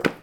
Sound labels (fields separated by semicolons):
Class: object falling; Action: being thrown; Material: cardboard